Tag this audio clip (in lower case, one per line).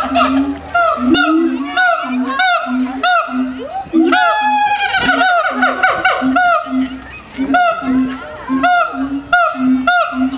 gibbon howling